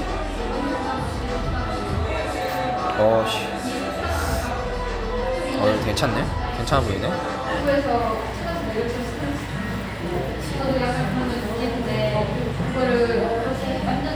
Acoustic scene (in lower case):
cafe